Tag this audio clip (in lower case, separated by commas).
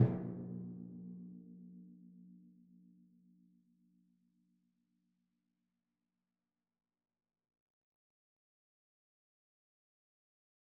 drum, musical instrument, percussion, music